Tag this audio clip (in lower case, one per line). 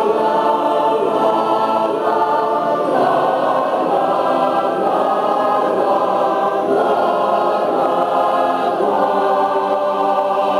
choir
orchestra
music